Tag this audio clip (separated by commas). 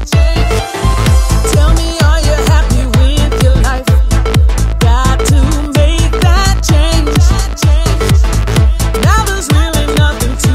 Music